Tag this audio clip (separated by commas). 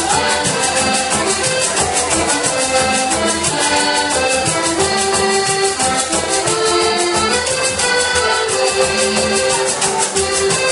Accordion